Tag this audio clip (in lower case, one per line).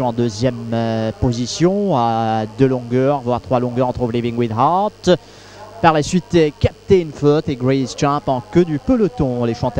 speech